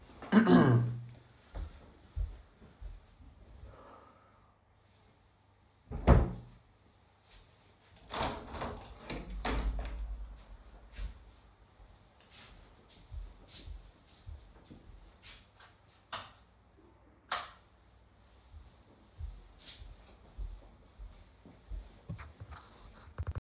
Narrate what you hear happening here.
I was in the room, went and took a sweater from the closet, opened the window, went to the door, turned off both light switches and left the room.